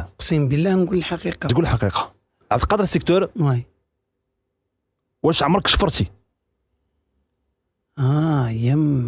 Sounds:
speech

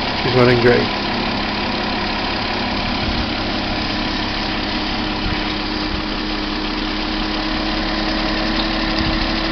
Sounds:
engine, speech, vehicle

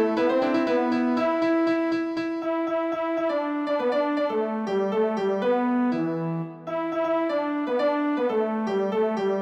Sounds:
music, musical instrument

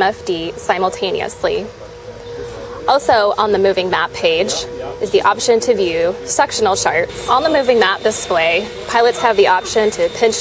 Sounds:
speech

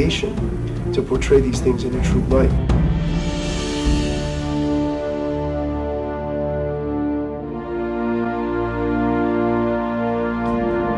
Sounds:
speech, music

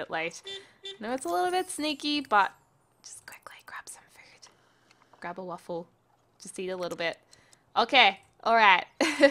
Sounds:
speech, whispering

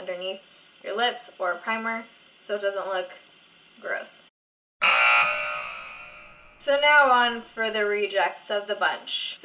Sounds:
speech, inside a small room

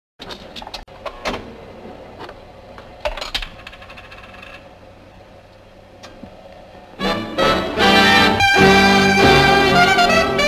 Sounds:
music, inside a large room or hall

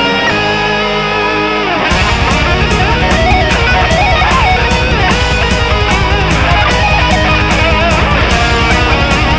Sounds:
music, guitar, plucked string instrument, musical instrument, strum, electric guitar

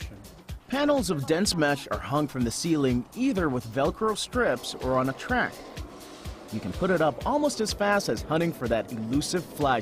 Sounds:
speech, music

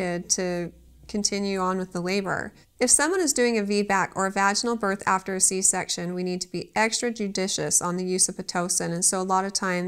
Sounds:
speech

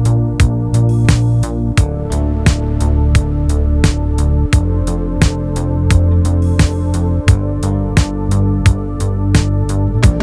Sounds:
electronica, music

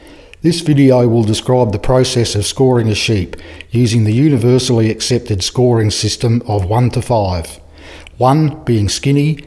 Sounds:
speech

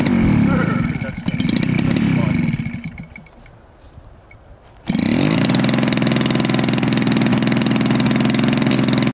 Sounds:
idling, engine, revving, vehicle, engine starting, medium engine (mid frequency)

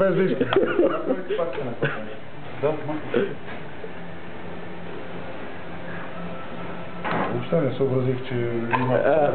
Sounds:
speech, medium engine (mid frequency)

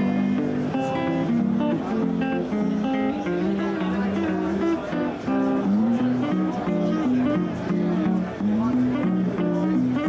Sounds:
music, speech

